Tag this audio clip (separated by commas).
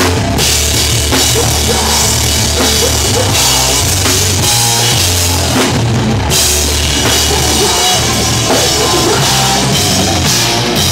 Music, Drum, Punk rock, Rock music, Drum kit, Heavy metal, Percussion, Musical instrument